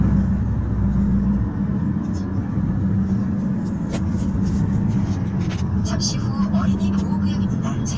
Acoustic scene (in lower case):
car